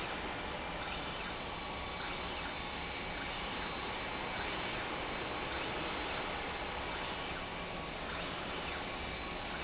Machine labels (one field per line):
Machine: slide rail